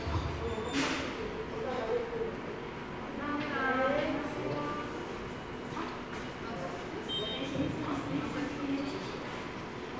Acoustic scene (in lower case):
subway station